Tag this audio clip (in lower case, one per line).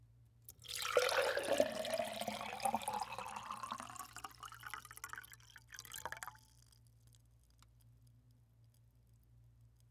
liquid